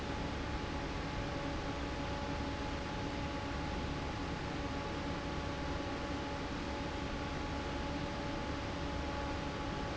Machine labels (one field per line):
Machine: fan